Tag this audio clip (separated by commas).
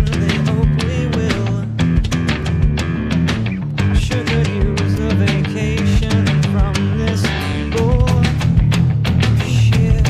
Music